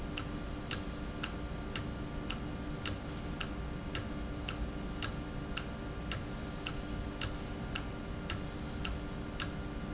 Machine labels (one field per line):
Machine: valve